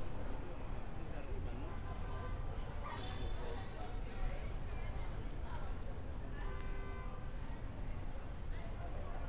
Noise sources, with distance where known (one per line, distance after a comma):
car horn
person or small group talking, near